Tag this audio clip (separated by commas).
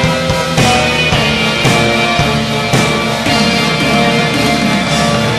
Music